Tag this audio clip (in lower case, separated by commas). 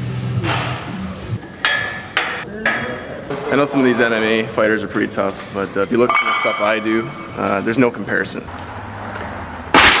speech